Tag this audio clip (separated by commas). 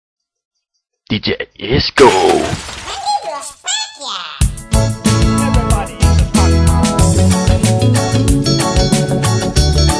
Music, Speech